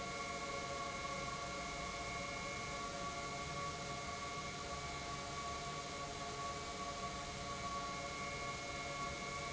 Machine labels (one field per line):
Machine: pump